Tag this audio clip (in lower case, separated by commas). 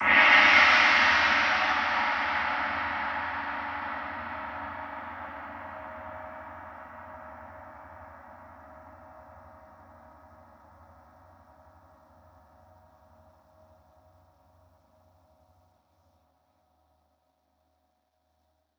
musical instrument, gong, music, percussion